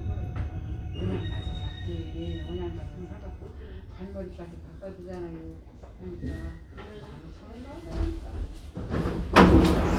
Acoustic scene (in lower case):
subway train